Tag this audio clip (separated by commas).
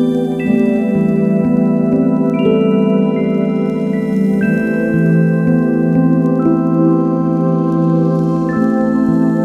Rhythm and blues, Music